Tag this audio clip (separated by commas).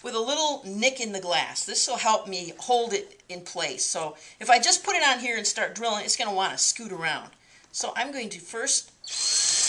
Tools, Power tool, Drill